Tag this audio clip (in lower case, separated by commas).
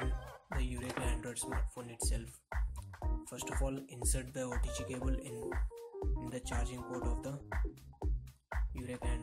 speech, music